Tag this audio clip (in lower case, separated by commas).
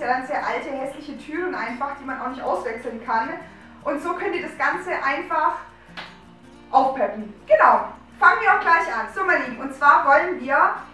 speech